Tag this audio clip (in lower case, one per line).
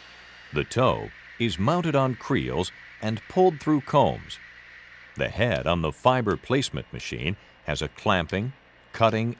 speech